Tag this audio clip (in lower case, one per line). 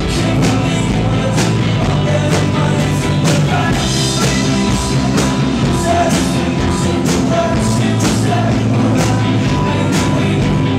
music